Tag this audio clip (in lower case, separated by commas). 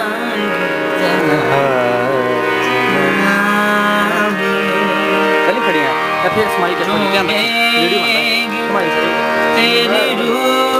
folk music, speech, music, male singing